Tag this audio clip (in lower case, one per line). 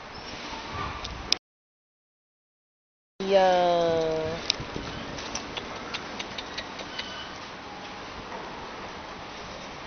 speech